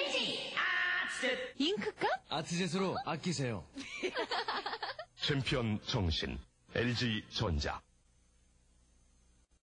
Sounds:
speech

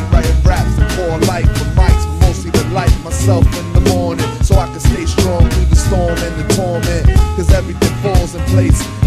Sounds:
music

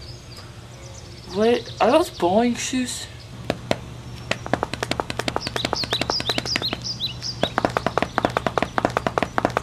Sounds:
speech

